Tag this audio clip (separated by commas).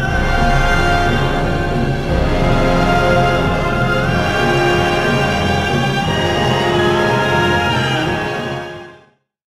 Music